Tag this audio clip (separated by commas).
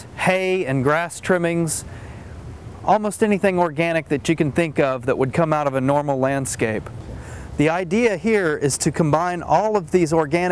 Speech